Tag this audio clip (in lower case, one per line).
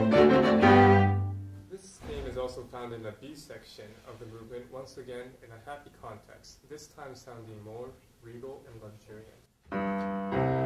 music
speech